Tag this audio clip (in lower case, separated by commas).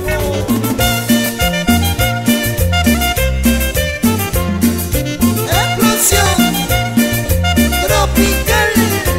music